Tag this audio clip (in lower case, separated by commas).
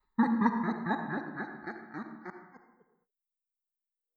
laughter, human voice